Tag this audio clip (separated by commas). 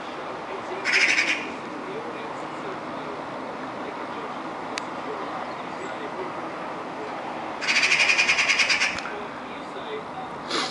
magpie calling